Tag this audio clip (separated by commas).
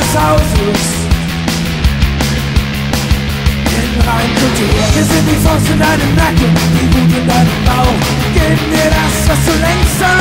Music